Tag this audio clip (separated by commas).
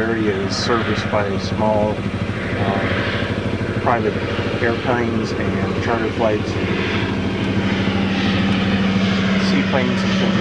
Vehicle, Speech, airscrew